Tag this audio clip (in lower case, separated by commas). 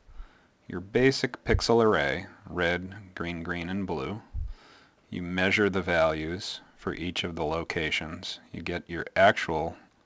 speech